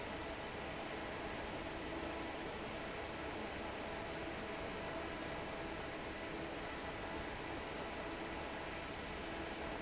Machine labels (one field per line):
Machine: fan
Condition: normal